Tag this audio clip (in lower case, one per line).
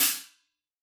cymbal
hi-hat
percussion
musical instrument
music